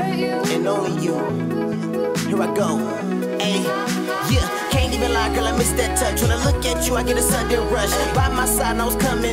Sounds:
electronic music, dubstep, music

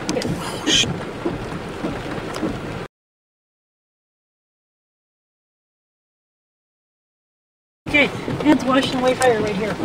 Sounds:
wind noise (microphone), speech

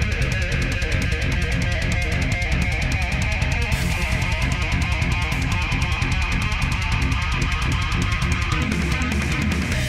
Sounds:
guitar, musical instrument, electric guitar, plucked string instrument, music

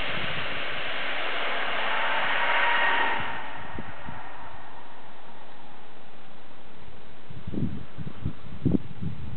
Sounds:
eruption

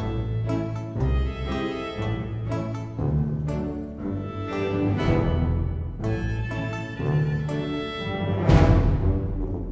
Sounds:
piano, electric piano, keyboard (musical)

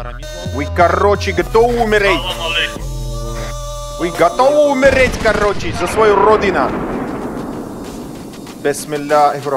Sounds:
speech, music

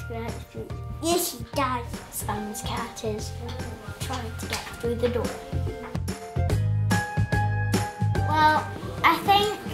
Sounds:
speech, music

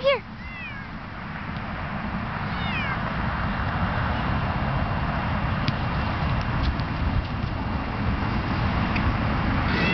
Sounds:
cat, meow, animal, domestic animals

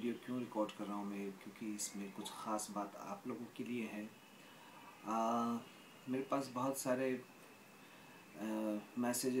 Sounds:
speech

